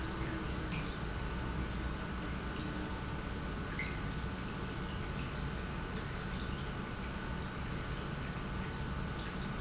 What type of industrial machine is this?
pump